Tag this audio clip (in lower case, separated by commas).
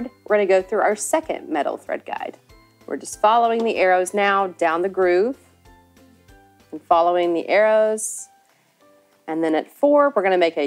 speech, music